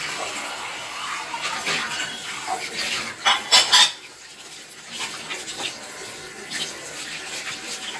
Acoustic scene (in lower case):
kitchen